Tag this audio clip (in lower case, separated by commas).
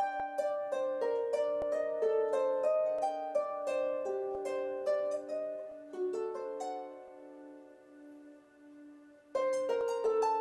pizzicato, harp, playing harp